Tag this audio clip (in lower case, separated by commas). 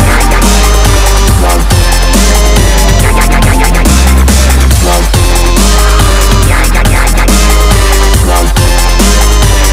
dubstep, drum and bass, music